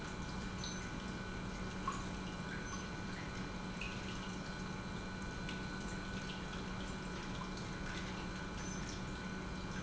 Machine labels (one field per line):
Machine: pump